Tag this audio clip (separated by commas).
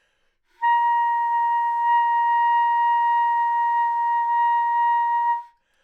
Music, Musical instrument, Wind instrument